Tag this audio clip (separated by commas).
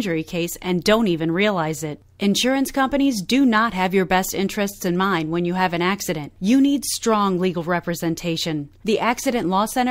Speech